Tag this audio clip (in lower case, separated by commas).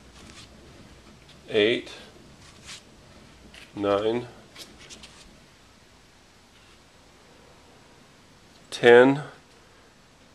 speech, inside a small room